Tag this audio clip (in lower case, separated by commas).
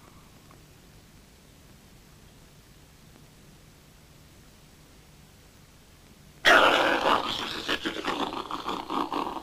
silence, inside a small room